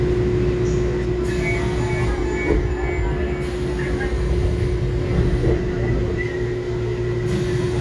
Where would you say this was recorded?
on a subway train